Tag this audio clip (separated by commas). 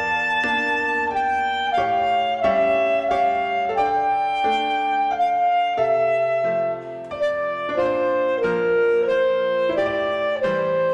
Clarinet, Music, playing clarinet